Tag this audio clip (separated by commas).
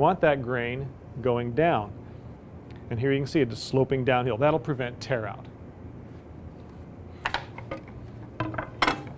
planing timber